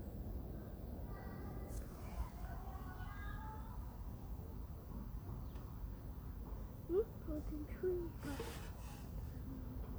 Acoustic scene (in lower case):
residential area